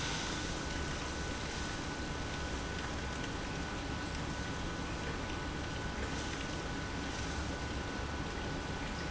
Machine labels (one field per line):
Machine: pump